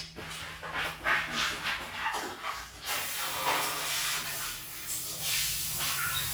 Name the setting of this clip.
restroom